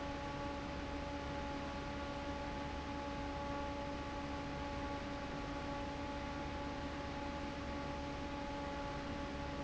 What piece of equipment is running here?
fan